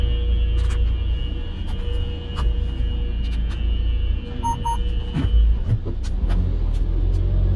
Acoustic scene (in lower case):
car